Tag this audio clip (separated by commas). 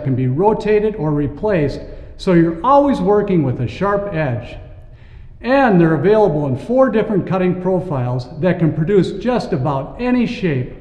Speech